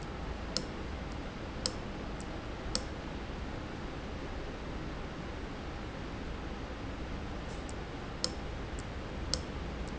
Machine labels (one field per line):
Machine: valve